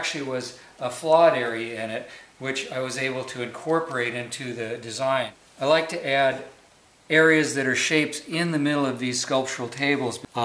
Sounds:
speech

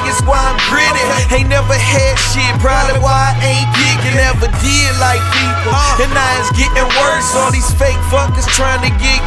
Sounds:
music

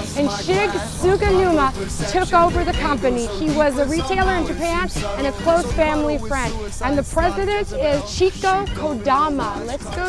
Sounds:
speech
music

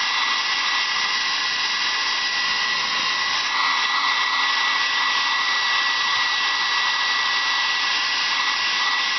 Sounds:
hair dryer

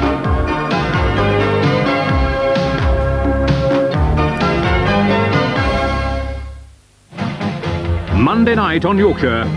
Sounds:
music
television
speech

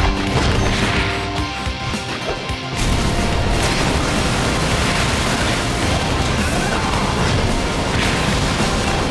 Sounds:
crash
music

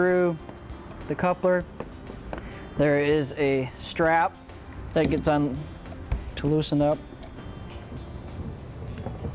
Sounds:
speech
music

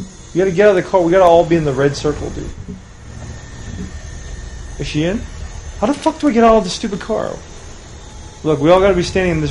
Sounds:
speech

